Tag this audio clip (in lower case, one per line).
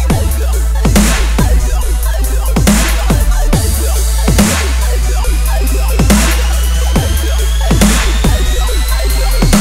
music
dubstep